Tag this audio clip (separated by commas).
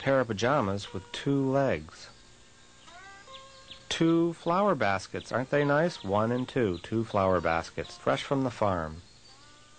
Music, Speech